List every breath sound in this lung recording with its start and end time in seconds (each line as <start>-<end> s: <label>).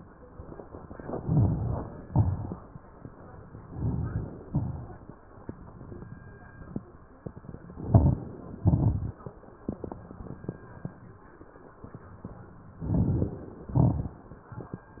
0.97-2.04 s: inhalation
0.97-2.04 s: crackles
2.07-2.81 s: exhalation
2.07-2.81 s: crackles
3.58-4.44 s: inhalation
3.58-4.44 s: crackles
4.49-5.19 s: exhalation
4.49-5.19 s: crackles
7.71-8.55 s: inhalation
7.71-8.55 s: crackles
8.59-9.20 s: exhalation
8.59-9.20 s: crackles
12.76-13.66 s: inhalation
12.76-13.66 s: crackles
13.68-14.26 s: exhalation
13.68-14.26 s: crackles